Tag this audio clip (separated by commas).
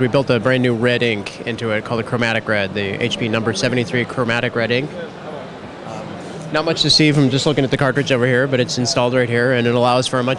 Speech